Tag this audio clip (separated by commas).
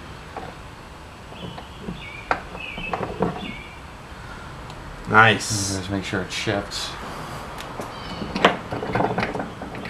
Speech